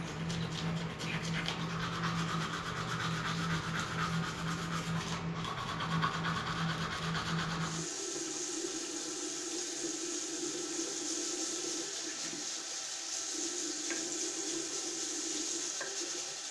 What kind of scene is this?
restroom